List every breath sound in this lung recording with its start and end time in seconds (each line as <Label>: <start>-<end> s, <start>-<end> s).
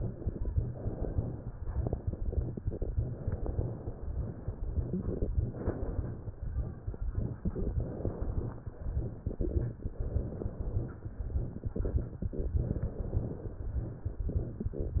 Inhalation: 0.76-1.55 s, 2.92-3.84 s, 5.35-6.14 s, 7.76-8.55 s, 9.90-11.00 s, 12.64-13.52 s
Exhalation: 0.00-0.69 s, 1.65-2.57 s, 4.69-5.30 s, 9.28-9.84 s, 14.32-15.00 s